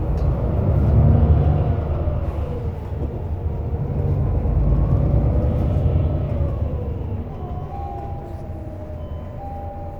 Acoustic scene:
bus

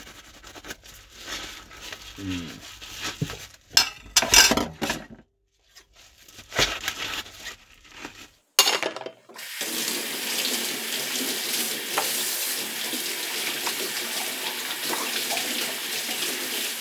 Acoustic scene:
kitchen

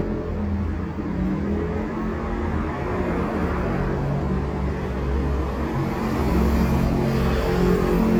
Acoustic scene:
street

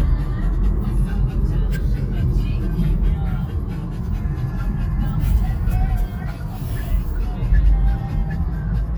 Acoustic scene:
car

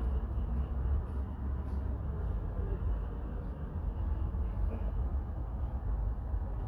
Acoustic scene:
park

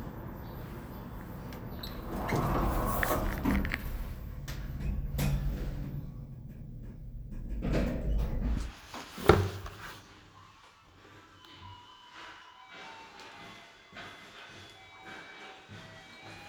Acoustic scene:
elevator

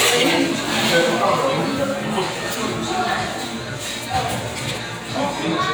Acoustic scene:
restaurant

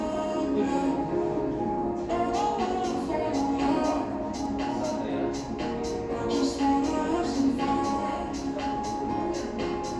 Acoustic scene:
cafe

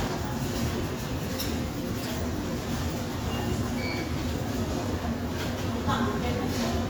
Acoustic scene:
subway station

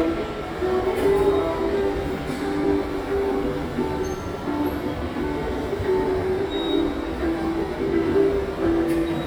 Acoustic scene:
subway station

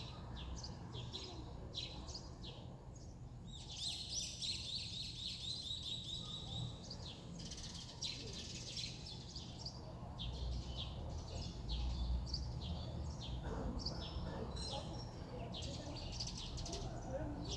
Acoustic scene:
residential area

